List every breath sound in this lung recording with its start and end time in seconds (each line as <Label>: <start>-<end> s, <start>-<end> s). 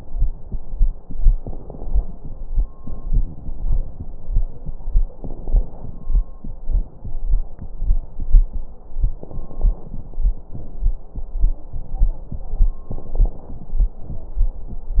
Inhalation: 1.09-2.73 s, 5.02-6.62 s, 9.08-10.43 s, 12.86-14.04 s
Exhalation: 2.77-4.14 s, 6.60-7.32 s, 10.52-11.20 s
Crackles: 1.09-2.73 s, 2.77-4.14 s, 5.02-6.62 s, 9.08-10.43 s, 12.86-14.04 s